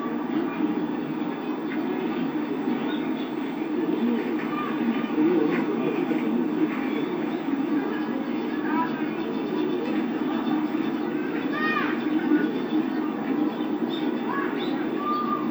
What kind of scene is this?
park